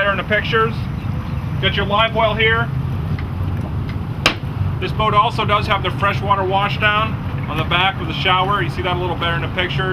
An adult male is speaking, a click, a motor is running, and water splashes quietly